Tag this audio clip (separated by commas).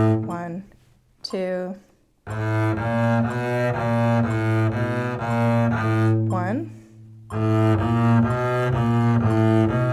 playing double bass